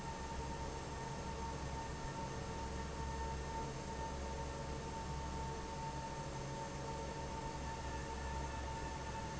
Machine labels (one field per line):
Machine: fan